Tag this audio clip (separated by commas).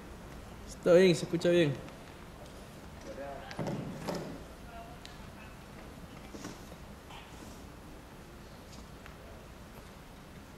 Speech